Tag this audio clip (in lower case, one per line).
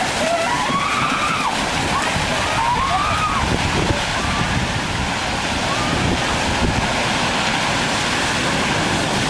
walk
speech